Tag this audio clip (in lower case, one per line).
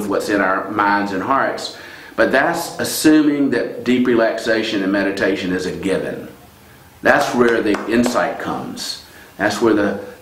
speech